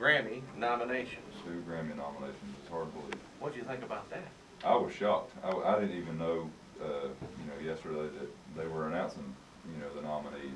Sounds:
speech
radio

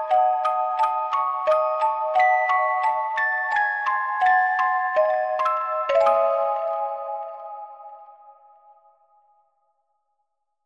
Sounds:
music

